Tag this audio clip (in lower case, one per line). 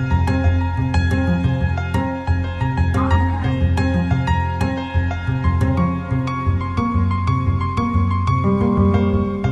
new-age music